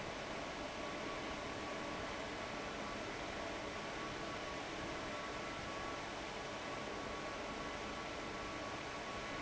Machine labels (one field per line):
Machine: fan